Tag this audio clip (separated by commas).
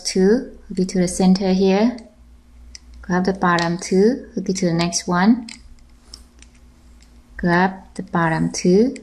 Speech, inside a small room